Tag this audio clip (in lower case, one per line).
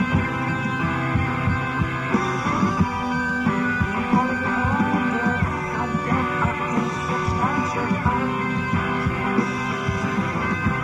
music